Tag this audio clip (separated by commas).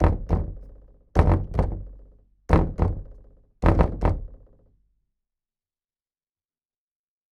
Knock, Domestic sounds, Door